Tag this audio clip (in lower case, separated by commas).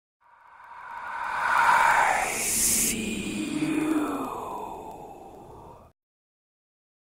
speech